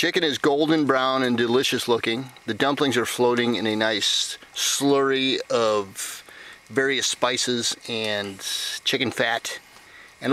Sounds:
Speech

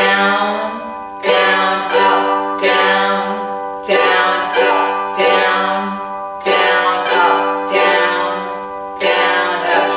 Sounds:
playing mandolin

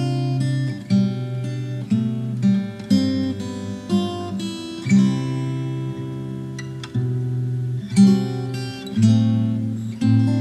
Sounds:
Musical instrument, Plucked string instrument, Strum, Music, Guitar

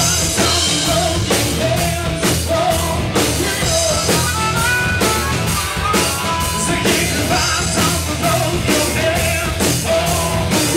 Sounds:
Music, Harmonica

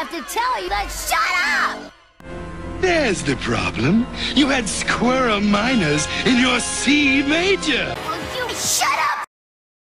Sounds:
Speech, Music

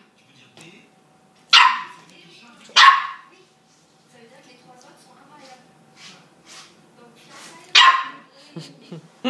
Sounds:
Animal, Domestic animals, Bark, Speech, Dog

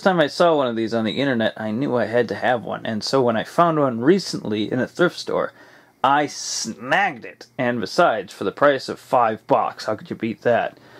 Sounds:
Speech

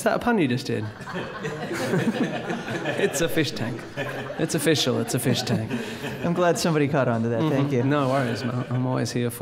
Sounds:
Speech

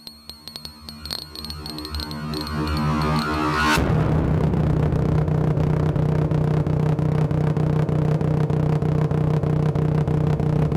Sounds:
Throbbing, Vibration

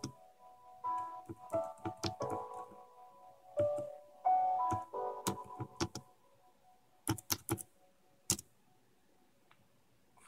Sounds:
Computer keyboard, Music

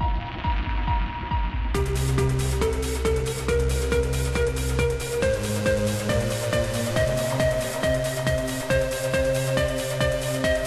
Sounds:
Music

